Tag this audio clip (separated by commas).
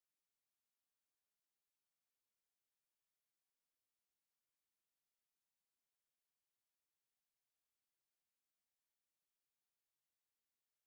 chimpanzee pant-hooting